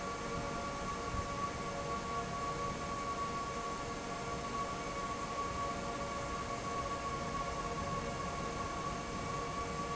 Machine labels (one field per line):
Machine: fan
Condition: normal